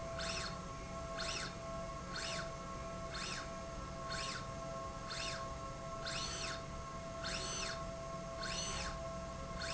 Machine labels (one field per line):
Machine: slide rail